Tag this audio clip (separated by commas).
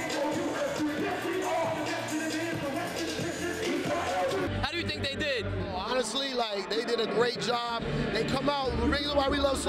Music, Speech